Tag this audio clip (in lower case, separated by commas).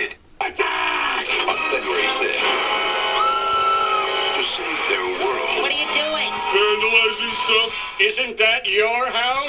music, speech